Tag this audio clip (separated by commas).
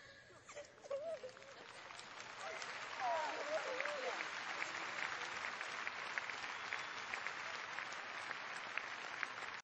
Speech, infant cry